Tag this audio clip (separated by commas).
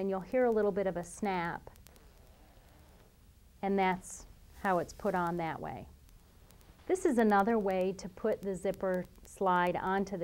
Speech